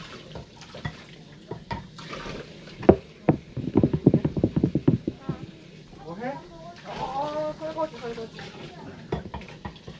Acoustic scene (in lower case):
kitchen